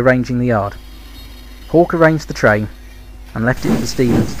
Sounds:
speech

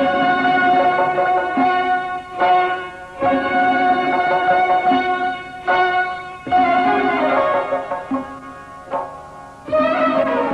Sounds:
musical instrument, violin, music

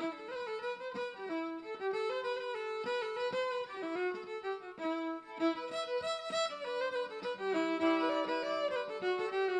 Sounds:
musical instrument, music, fiddle

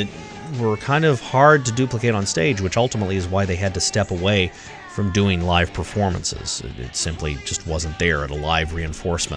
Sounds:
music, speech

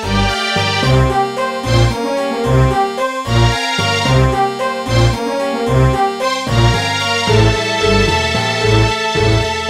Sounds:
music, theme music

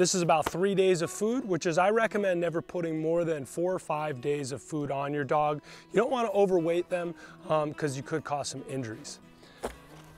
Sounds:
music, speech

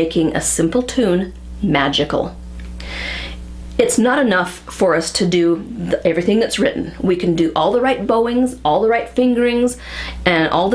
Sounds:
speech

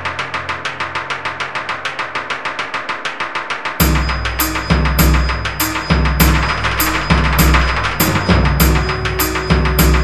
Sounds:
theme music, bass drum, musical instrument, drum, background music, music, drum kit

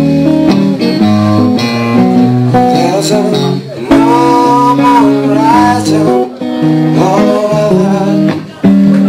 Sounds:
speech, music

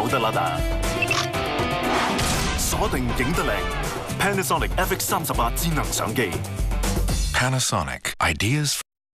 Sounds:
speech, single-lens reflex camera, music

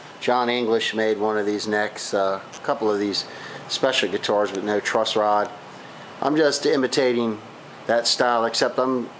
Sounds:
speech

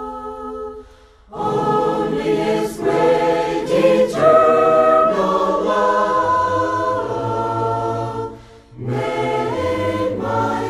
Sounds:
a capella

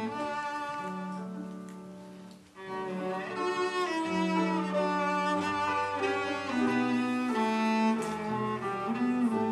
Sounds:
bowed string instrument, music, cello, musical instrument

